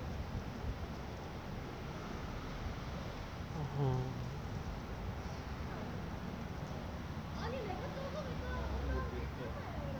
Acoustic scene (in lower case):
residential area